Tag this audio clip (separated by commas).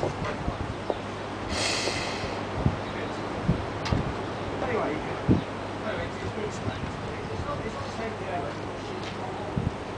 Speech